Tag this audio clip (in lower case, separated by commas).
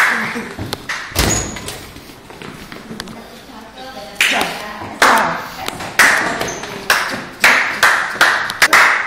speech